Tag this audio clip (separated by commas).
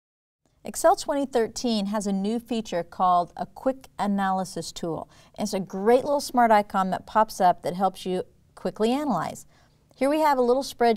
Speech